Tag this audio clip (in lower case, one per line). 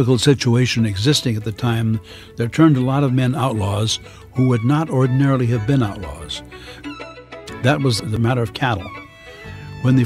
music
speech